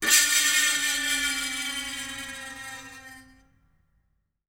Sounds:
screech

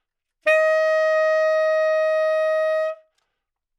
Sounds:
wind instrument
music
musical instrument

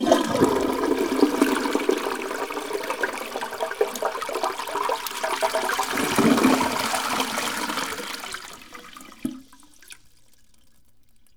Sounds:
water
domestic sounds
toilet flush
gurgling

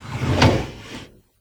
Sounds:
drawer open or close
domestic sounds

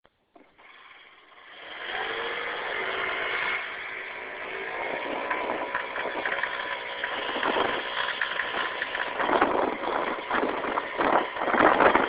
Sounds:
engine

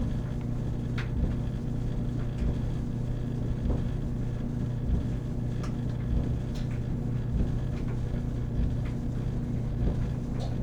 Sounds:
engine

